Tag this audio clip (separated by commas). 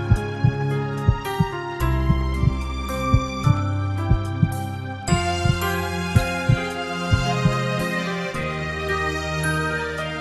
Background music, Music